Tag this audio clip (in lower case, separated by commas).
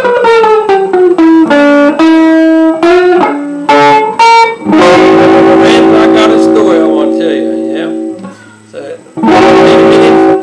speech, plucked string instrument, musical instrument, guitar, inside a small room, music